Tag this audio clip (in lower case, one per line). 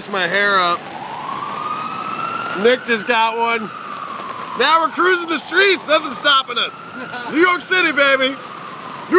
speech
rain on surface